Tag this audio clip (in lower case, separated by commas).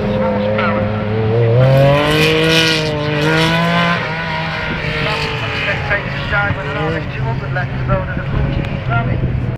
speech, car, vehicle